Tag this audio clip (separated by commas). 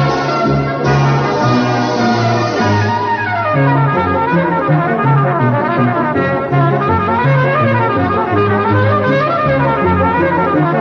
playing cornet